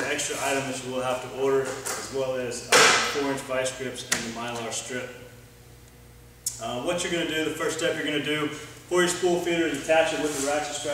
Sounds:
Speech

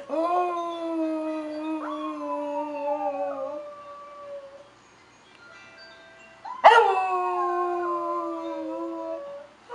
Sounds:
dog baying

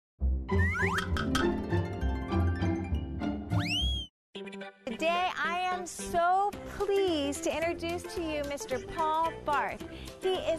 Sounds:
Speech, Music

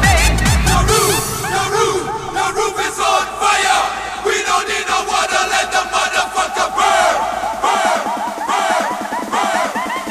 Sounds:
Electronic music, Techno, Music

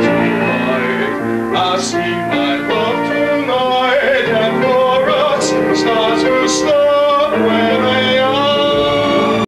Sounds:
Male singing, Music

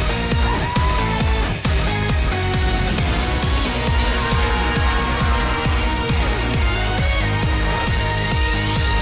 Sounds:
Music

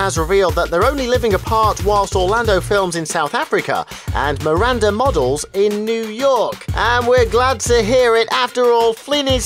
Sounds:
Music, Speech

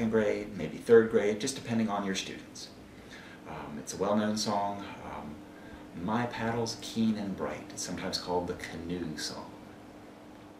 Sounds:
Speech

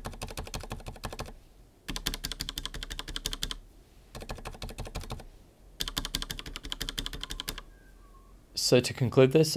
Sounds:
typing on computer keyboard

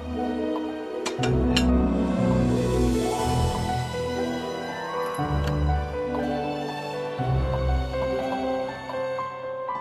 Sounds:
Music

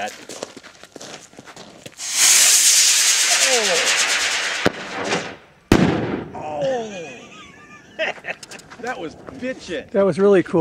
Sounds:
Speech, Firecracker

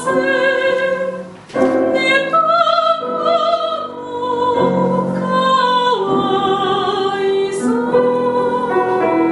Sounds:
Music

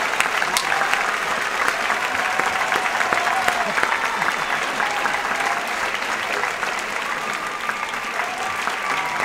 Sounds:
Applause

